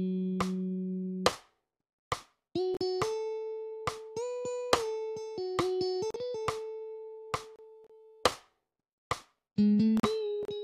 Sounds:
music, musical instrument, bass guitar, strum, guitar, plucked string instrument

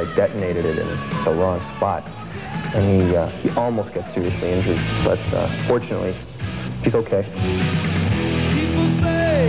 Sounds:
speech, music

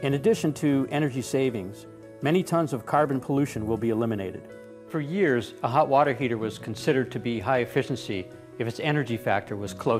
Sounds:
speech, music

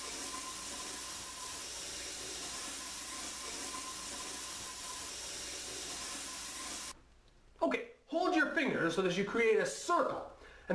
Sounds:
sink (filling or washing), water tap, water

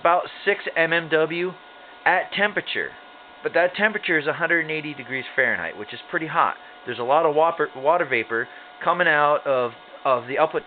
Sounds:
speech

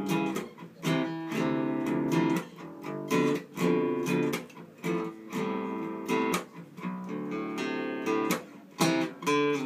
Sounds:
guitar, acoustic guitar, strum, plucked string instrument, musical instrument, music

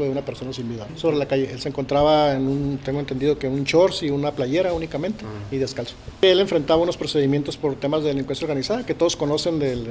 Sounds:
speech

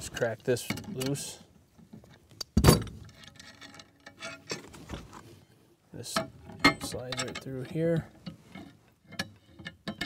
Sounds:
speech

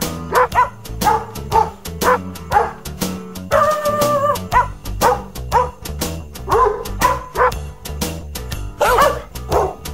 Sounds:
music, jingle bell

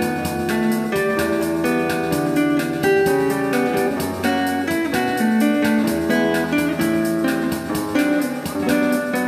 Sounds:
music, guitar, musical instrument, acoustic guitar, plucked string instrument

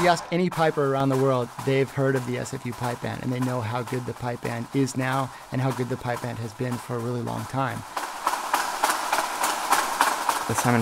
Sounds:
speech, music

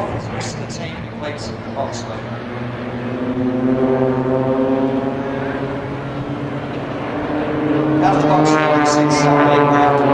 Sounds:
aircraft, fixed-wing aircraft, speech, vehicle

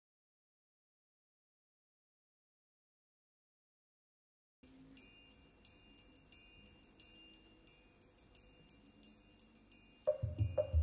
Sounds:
marimba, musical instrument, music

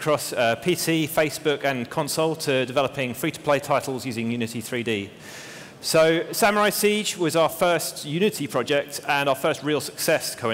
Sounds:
speech

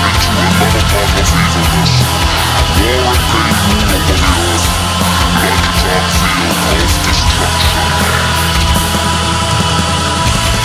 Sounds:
heavy metal, angry music, speech, music

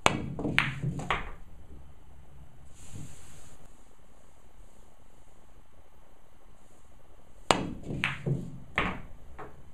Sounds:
striking pool

